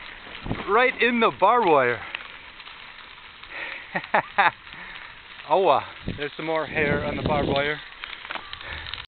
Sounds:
speech

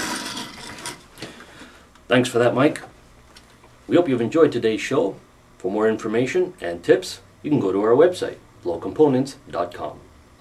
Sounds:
speech

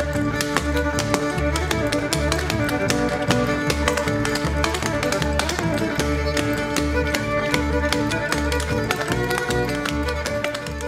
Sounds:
country, music, bluegrass

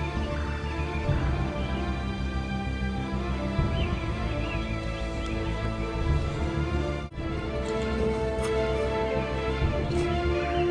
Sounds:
music, bird

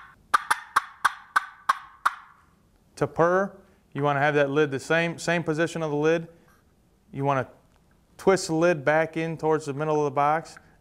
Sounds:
speech

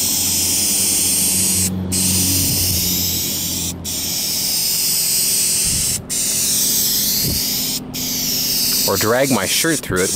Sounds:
outside, urban or man-made, speech, vehicle

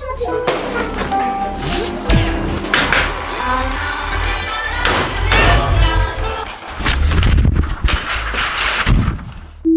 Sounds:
sine wave, marimba, glockenspiel, mallet percussion

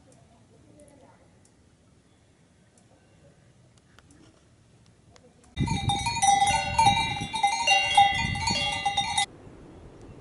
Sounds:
bovinae cowbell

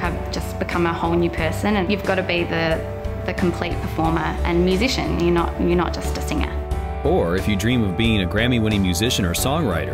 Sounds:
speech, music

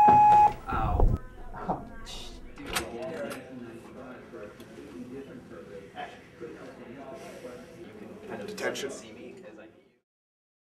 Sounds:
speech

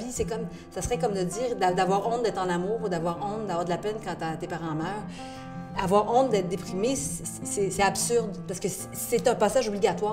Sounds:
music, speech

